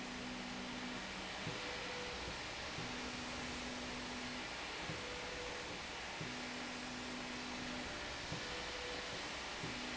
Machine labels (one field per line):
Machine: slide rail